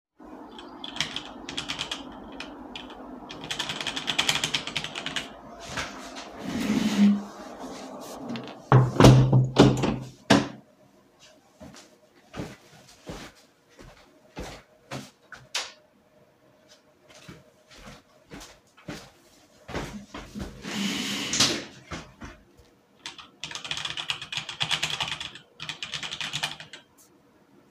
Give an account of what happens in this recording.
I was typing on a keyboard, got up and closed a window. Then I walked to the switch and turned on the lights. I returned to the desk, sat down and continued typing.